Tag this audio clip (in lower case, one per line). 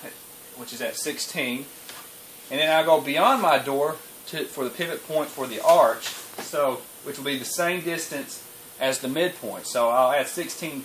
speech